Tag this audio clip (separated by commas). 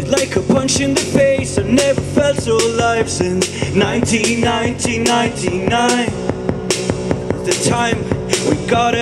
Music